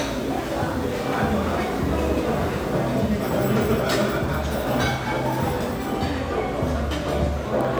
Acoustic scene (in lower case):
restaurant